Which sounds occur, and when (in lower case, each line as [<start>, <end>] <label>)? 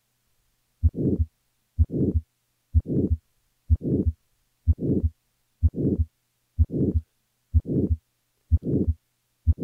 [0.00, 9.63] background noise
[0.81, 1.26] heart sounds
[1.74, 2.17] heart sounds
[2.73, 3.17] heart sounds
[3.65, 4.13] heart sounds
[4.63, 5.10] heart sounds
[5.57, 6.09] heart sounds
[6.58, 7.02] heart sounds
[7.47, 7.98] heart sounds
[8.46, 8.93] heart sounds